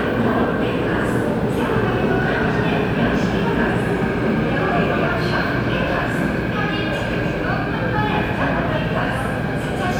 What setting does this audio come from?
subway station